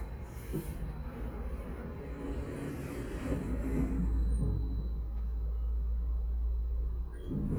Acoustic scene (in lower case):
elevator